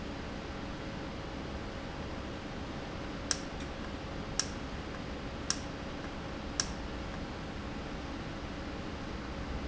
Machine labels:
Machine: valve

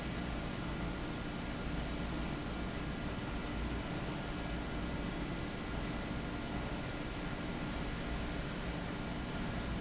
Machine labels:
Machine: fan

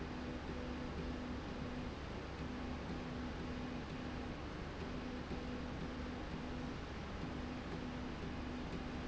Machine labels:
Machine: slide rail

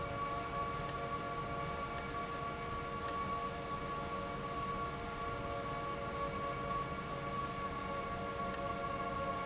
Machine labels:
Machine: valve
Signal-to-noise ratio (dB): -6 dB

